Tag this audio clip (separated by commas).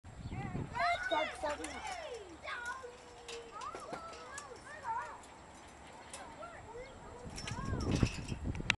Speech